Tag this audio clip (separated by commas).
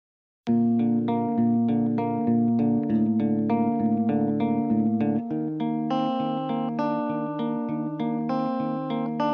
Effects unit